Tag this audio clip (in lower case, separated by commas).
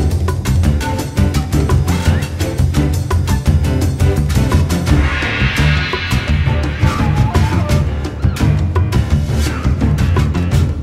music, funny music